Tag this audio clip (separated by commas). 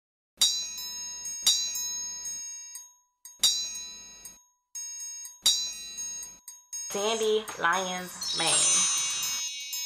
Speech, Music